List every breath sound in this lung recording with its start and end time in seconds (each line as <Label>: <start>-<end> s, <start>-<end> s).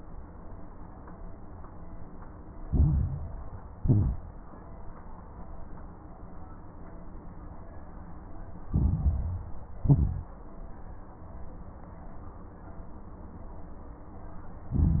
Inhalation: 2.68-3.55 s, 8.70-9.59 s, 14.67-15.00 s
Exhalation: 3.76-4.52 s, 9.80-10.34 s
Crackles: 2.68-3.55 s, 3.76-4.52 s, 8.70-9.59 s, 9.80-10.34 s, 14.67-15.00 s